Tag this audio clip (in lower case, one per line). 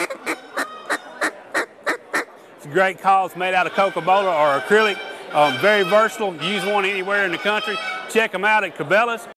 speech
quack
duck